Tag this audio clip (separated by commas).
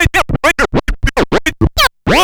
Music, Musical instrument, Scratching (performance technique)